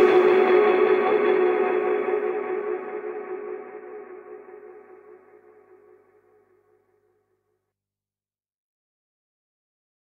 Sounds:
Music

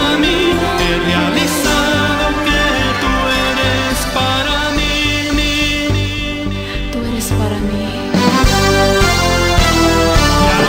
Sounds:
Music

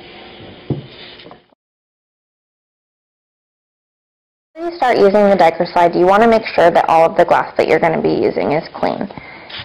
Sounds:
Speech

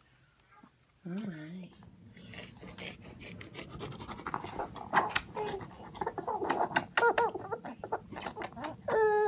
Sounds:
Speech

